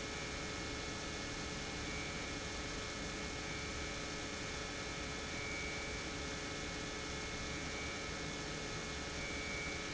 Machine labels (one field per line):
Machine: pump